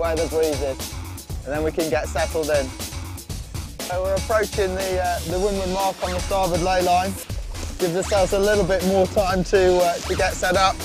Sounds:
music, speech

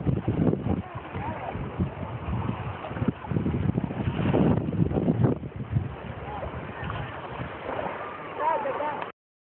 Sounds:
wind, wind noise, wind noise (microphone)

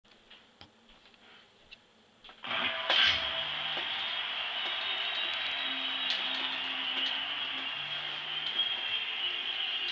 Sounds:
music

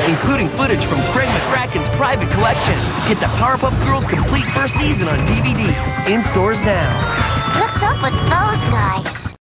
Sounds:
music, speech

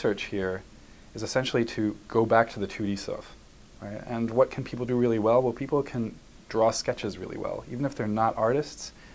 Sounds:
speech

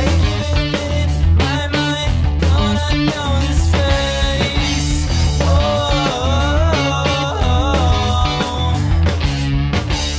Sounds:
music, grunge

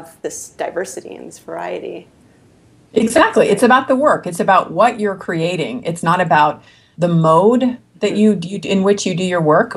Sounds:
conversation, speech

